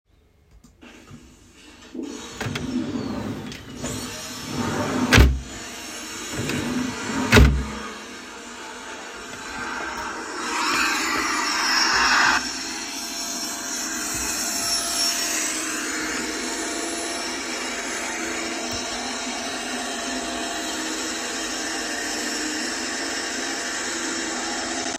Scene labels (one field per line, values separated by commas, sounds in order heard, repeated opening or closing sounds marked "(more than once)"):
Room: living room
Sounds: vacuum cleaner, wardrobe or drawer (more than once)